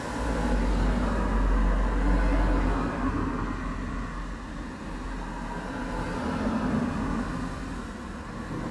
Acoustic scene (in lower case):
street